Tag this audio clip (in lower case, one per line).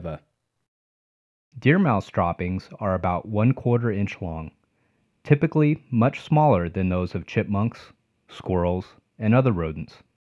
speech